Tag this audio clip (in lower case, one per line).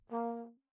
brass instrument
musical instrument
music